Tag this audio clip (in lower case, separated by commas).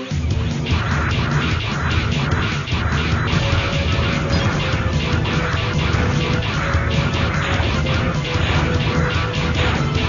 music